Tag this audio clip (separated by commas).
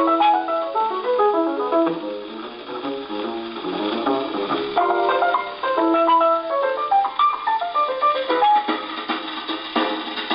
Music, Independent music